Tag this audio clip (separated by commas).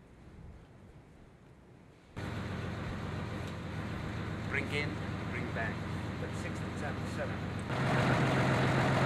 Speech